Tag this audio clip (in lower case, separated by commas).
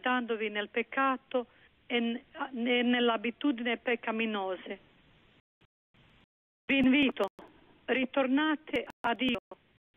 speech, radio